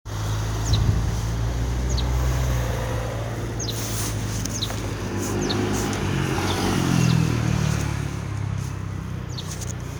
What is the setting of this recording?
residential area